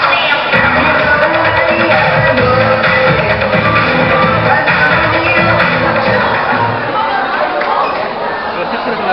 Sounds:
music, speech

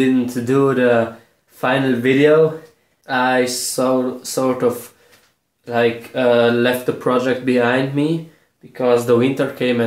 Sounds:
speech

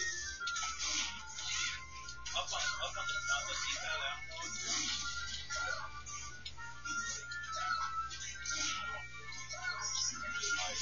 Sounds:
speech

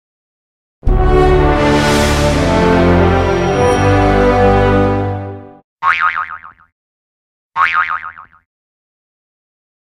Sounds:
music, boing

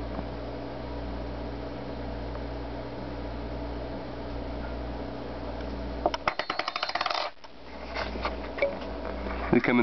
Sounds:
coin (dropping)

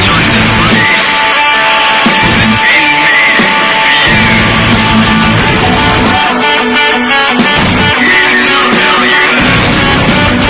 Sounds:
heavy metal, music

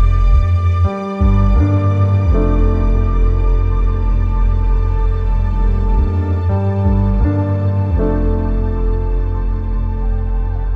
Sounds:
music, new-age music

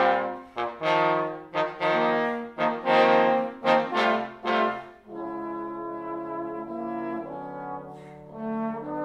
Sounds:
trombone, trumpet, brass instrument

